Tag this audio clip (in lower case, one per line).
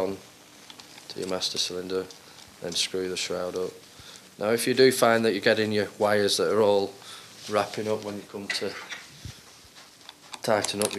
speech
inside a small room